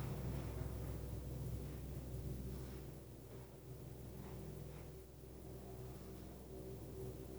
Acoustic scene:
elevator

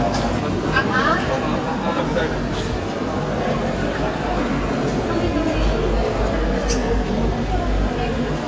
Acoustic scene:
crowded indoor space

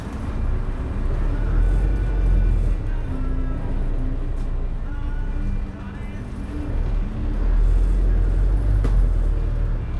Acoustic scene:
bus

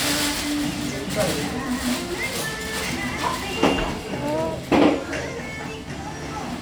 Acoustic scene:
restaurant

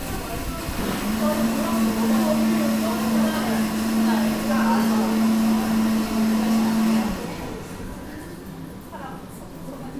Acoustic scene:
cafe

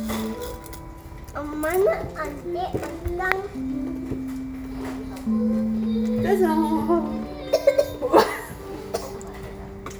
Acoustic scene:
crowded indoor space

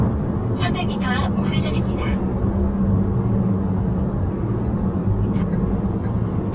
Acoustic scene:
car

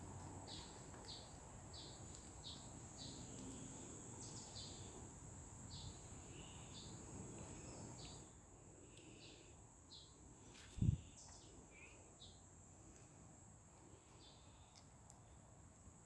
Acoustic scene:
park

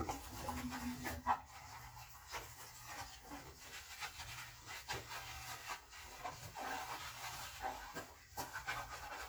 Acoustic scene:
kitchen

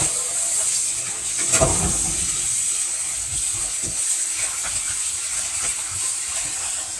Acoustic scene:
kitchen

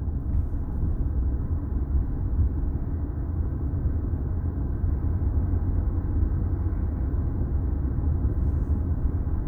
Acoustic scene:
car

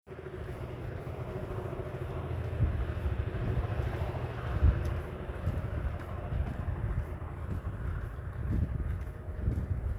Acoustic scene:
residential area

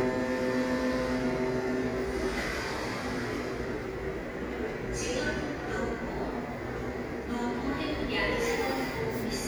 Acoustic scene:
subway station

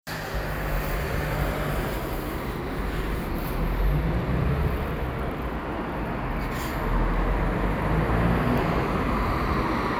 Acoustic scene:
street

